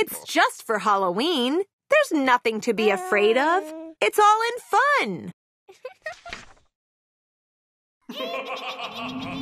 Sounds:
speech

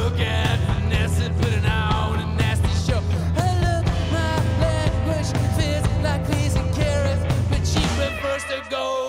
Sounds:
music, roll, rock and roll

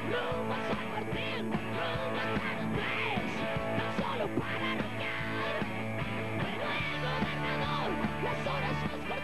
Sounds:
music, rock and roll

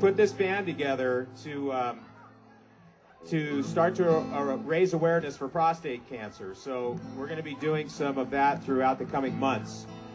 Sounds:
music, speech

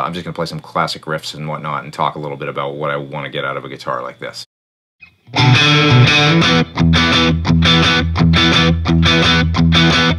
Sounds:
guitar, speech, plucked string instrument, musical instrument, music

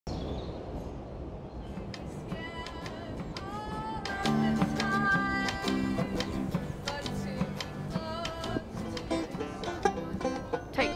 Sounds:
bluegrass, banjo, singing

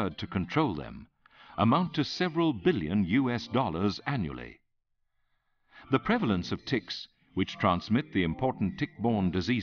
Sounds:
speech

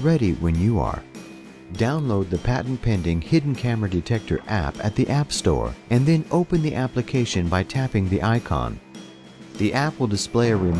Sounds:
music, speech

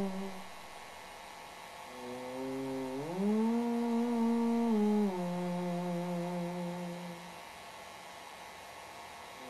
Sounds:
mains hum, hum

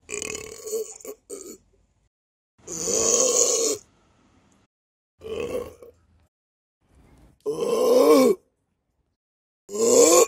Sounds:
people burping

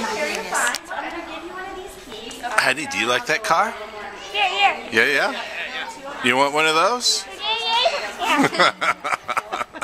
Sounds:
speech, inside a large room or hall, woman speaking, child speech

